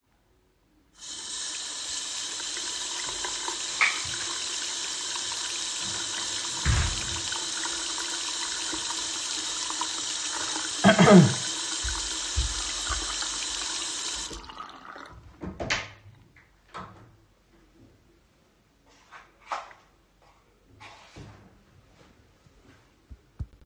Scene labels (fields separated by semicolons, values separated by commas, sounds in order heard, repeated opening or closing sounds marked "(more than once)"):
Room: bathroom; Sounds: running water, door (more than once), footsteps